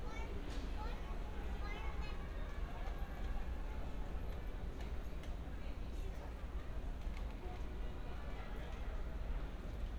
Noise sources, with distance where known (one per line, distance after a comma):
person or small group talking